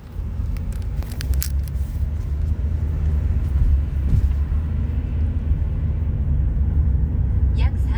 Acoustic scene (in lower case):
car